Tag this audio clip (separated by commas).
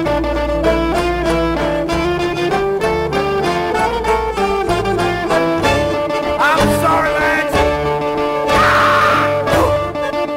Orchestra, Music, String section